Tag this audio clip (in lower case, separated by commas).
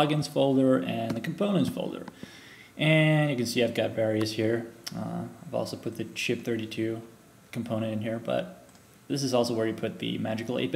speech